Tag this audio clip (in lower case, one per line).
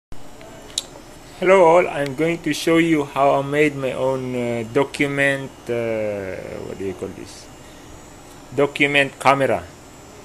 speech